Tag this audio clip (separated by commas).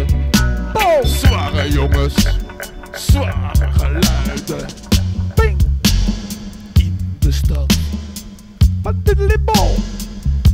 Music